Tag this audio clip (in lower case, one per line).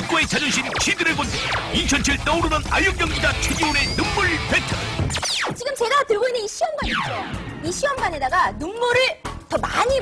speech
music